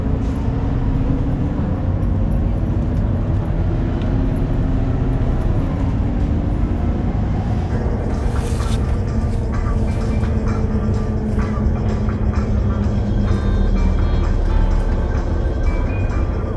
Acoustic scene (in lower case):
bus